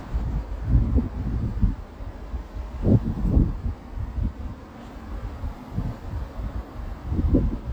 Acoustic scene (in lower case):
residential area